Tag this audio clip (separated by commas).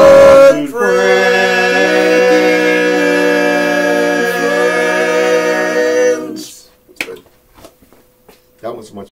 Speech